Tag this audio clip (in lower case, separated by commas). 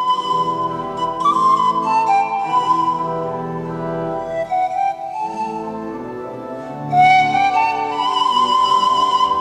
music, musical instrument, classical music